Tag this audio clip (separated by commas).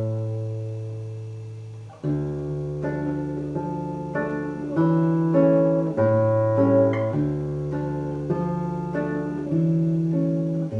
Music, Musical instrument, Plucked string instrument, Strum, Guitar, Acoustic guitar